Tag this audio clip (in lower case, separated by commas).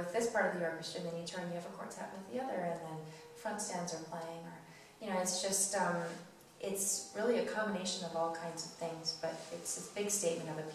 speech